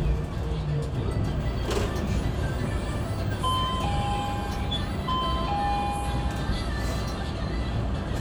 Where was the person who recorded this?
on a bus